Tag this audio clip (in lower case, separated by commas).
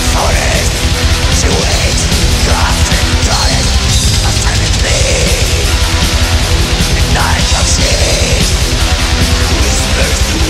angry music, music